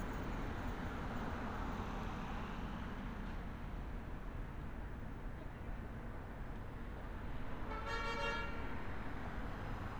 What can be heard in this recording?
car horn